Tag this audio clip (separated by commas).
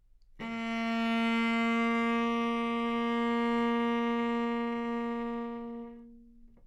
Musical instrument, Bowed string instrument, Music